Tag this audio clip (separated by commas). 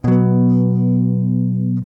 Guitar, Plucked string instrument, Electric guitar, Strum, Music, Musical instrument